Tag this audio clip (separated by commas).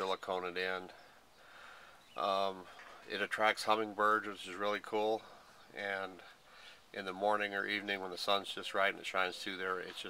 Speech